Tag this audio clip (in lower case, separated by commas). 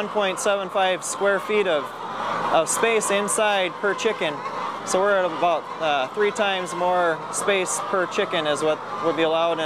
fowl, chicken, cluck